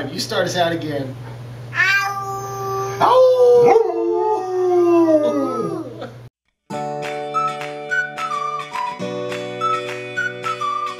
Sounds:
dog howling

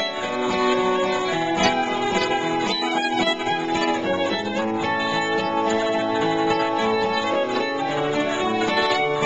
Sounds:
Music, Musical instrument, fiddle, Pizzicato

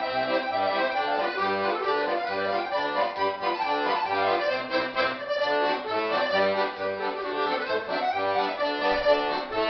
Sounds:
Musical instrument, Music

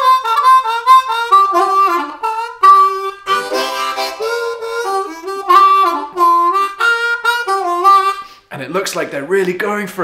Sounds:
playing harmonica

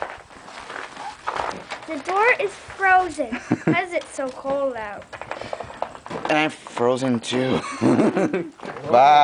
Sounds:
Speech

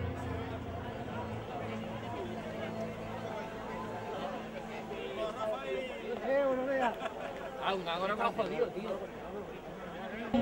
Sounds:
Speech, outside, urban or man-made, Run

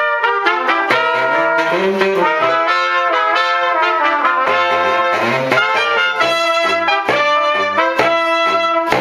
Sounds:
Music, Musical instrument, Trumpet, playing trumpet

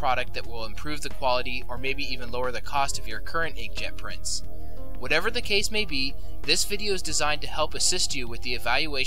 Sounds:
Speech, Music

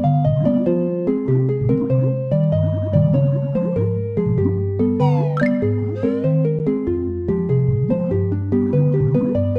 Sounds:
Music

